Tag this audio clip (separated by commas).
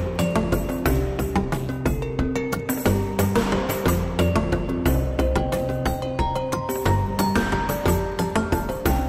Music